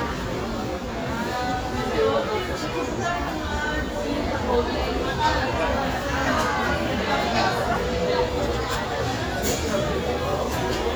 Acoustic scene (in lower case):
crowded indoor space